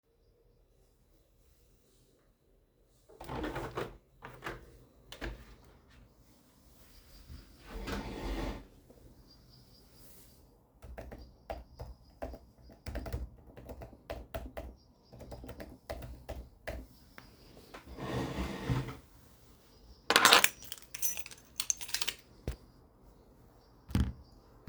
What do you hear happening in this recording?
I open the window, pull my chair to sit down and start typing on the keyboard, then I get out of my chair and pick up my keys.